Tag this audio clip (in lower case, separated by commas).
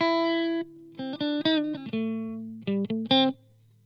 musical instrument, music, plucked string instrument, guitar, electric guitar